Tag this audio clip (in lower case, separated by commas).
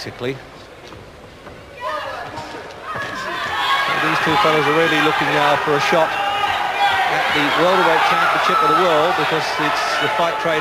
speech